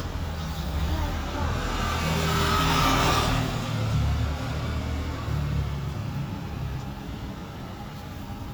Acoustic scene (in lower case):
street